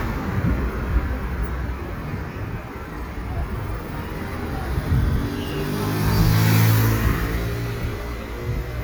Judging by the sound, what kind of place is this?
street